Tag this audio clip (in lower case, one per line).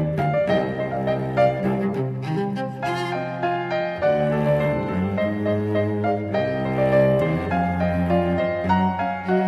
music